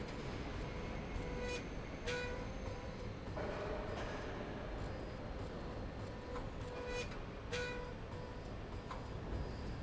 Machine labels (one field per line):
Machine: slide rail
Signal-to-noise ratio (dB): 0 dB